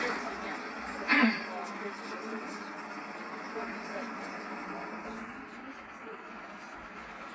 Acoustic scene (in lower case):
bus